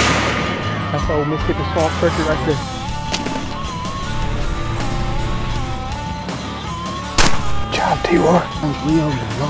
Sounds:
Music, Bird, Speech

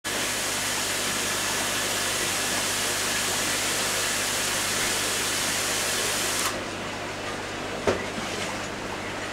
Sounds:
inside a small room

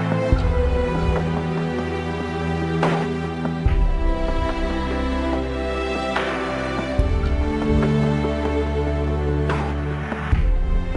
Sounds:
Theme music, Music

